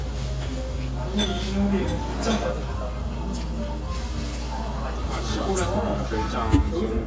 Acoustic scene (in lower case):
restaurant